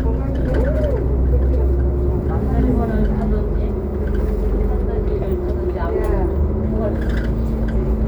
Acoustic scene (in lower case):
bus